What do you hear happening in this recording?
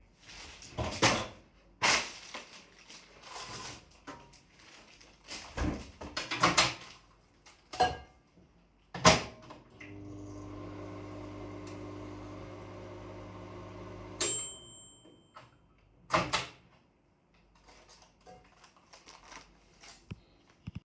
I opened the refrigerator, took the meal, closed the refrigerator, opened a microwave, put the dish, closed a microwave, started it, it finisged working